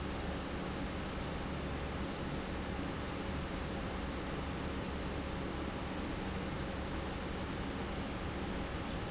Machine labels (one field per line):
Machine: pump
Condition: normal